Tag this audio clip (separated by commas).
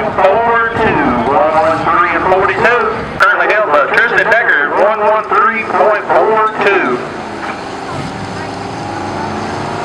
Truck, Vehicle, Speech